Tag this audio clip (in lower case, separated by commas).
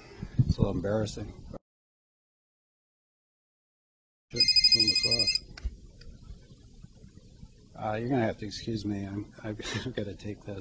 speech